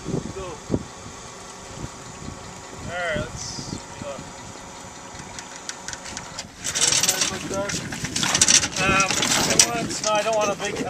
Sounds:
Speech

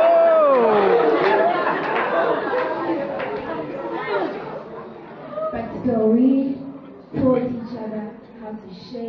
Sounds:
inside a public space, Speech

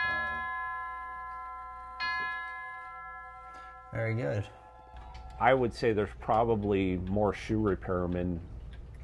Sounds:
Speech

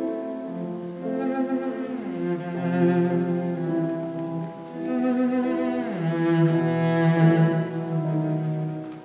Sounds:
Music

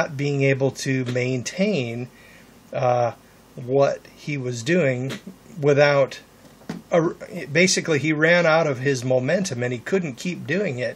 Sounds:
inside a small room, Speech

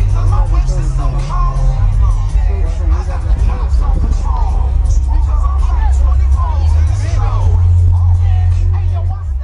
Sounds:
Vehicle, Music, Speech

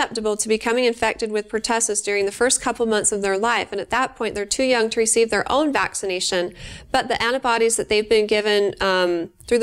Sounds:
Speech

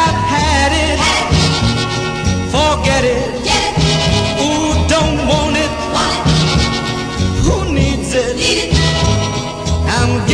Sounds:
Music, Funk

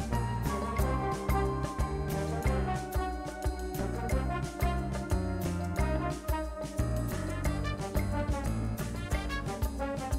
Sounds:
Music

